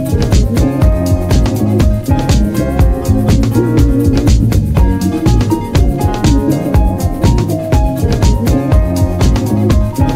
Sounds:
Music

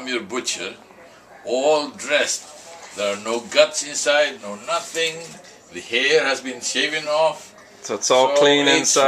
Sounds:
Speech

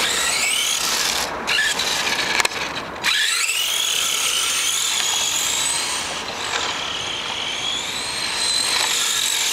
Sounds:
Car, Vehicle

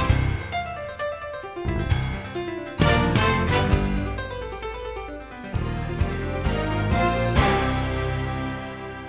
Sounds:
Piano, Keyboard (musical), Electric piano

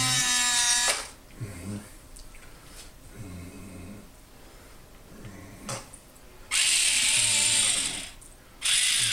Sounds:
inside a small room

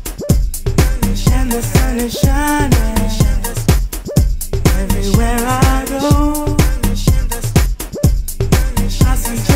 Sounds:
Afrobeat, Music

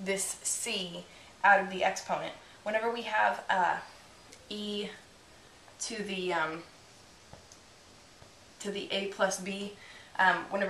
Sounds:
Speech

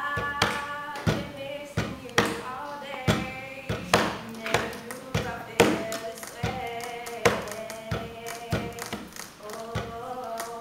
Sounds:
Female singing

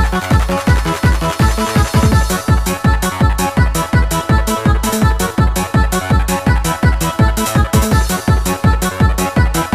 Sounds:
Music, Techno

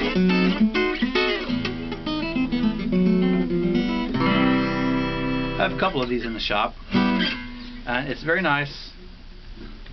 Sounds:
Speech, Music

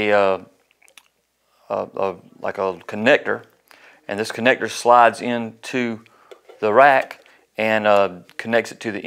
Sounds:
Speech

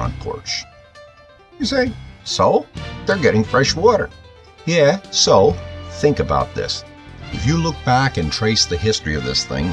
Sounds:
Speech, Music

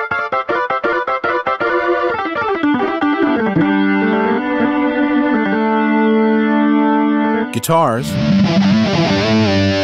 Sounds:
Speech, Music

